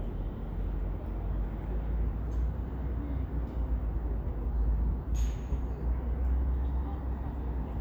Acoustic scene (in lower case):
residential area